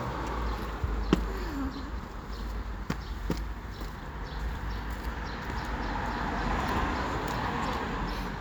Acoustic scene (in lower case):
street